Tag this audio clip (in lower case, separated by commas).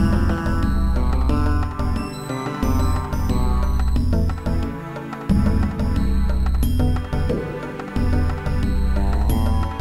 music